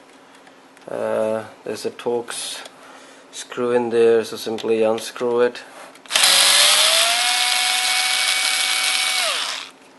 A man is speaking and then an electric drill sound